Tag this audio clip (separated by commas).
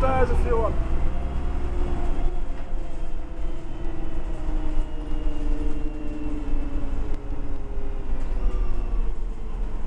Bus, Speech, Vehicle